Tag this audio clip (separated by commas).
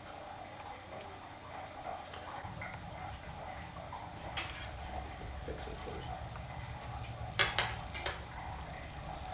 Speech, inside a small room